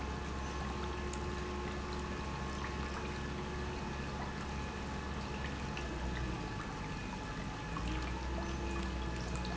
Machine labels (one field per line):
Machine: pump